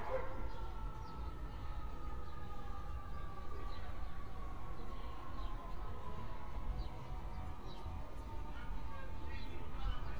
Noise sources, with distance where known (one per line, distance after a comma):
background noise